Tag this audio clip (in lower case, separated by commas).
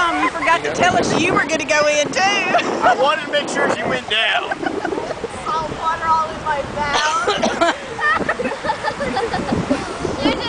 outside, rural or natural, ocean, speech